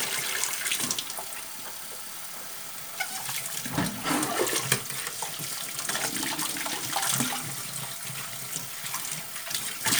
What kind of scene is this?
kitchen